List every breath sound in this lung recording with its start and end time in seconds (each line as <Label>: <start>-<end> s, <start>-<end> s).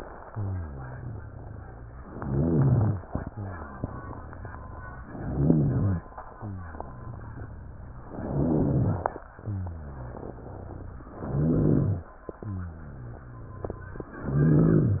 Inhalation: 2.01-3.07 s, 5.08-6.07 s, 8.15-9.18 s, 11.16-12.15 s, 14.24-15.00 s
Exhalation: 0.24-2.03 s, 3.21-5.10 s, 6.24-8.13 s, 9.30-11.08 s, 12.37-14.17 s
Rhonchi: 0.20-1.99 s, 2.01-3.07 s, 3.21-5.10 s, 5.14-6.07 s, 8.15-9.18 s, 9.30-11.08 s, 11.16-12.15 s, 12.37-14.17 s, 14.24-15.00 s